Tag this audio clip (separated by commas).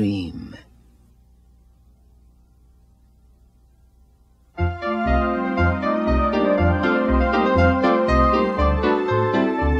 Music, Speech